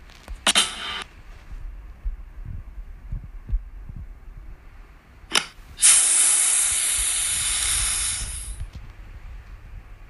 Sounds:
Steam

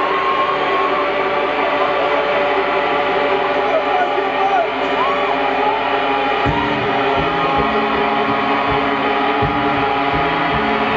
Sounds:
Speech, Music

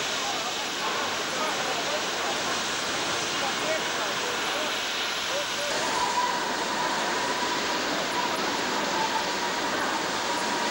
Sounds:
Vehicle, Rail transport, Speech, Train

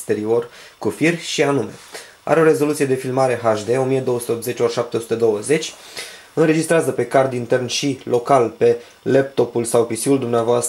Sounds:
Speech

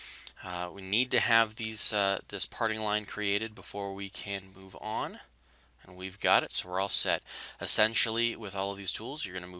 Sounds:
Speech

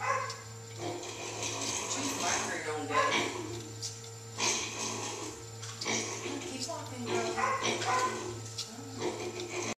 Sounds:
Speech, Oink

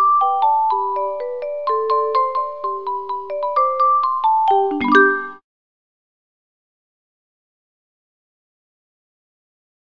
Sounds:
Music

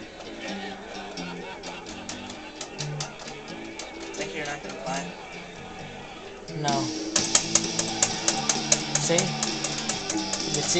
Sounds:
Speech

